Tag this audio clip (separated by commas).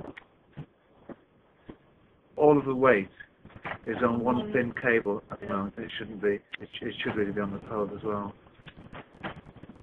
Speech